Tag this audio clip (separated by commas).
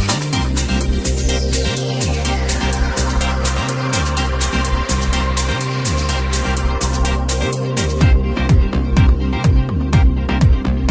Music, Trance music